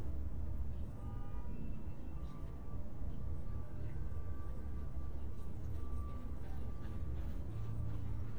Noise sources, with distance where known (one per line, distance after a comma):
car horn, far